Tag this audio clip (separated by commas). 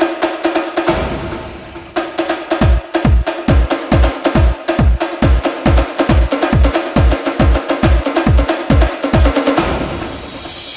Dance music, Music